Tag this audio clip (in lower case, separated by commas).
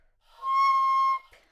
woodwind instrument, music, musical instrument